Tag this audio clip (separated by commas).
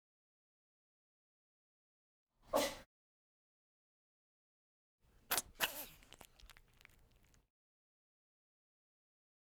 Domestic animals, Cat, Animal